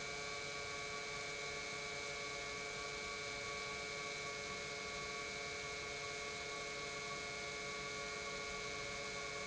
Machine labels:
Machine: pump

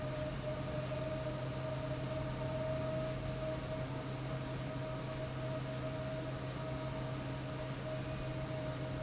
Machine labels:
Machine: fan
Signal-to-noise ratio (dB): -6 dB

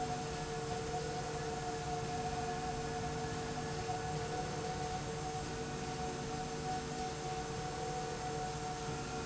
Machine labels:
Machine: slide rail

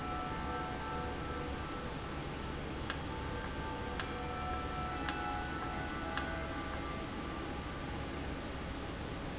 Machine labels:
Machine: valve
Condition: normal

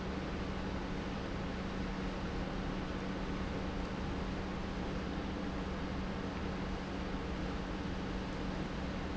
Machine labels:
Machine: pump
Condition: normal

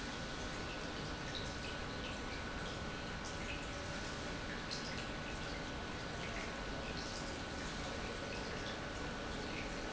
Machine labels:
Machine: pump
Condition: normal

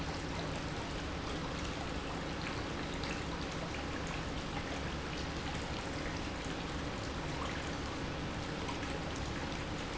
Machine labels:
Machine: pump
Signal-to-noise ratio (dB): -6 dB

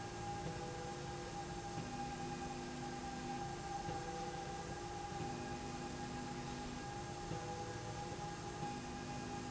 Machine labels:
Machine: slide rail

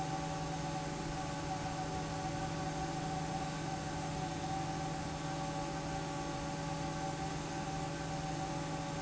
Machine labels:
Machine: fan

